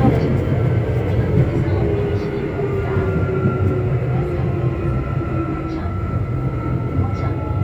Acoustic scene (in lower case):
subway train